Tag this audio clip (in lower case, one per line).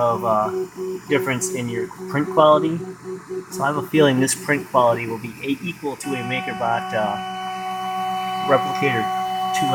speech
printer